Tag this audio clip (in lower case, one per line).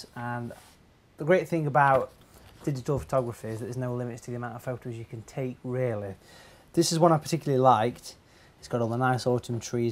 speech